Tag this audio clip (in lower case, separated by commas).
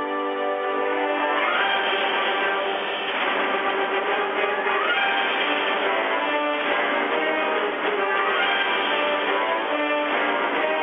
music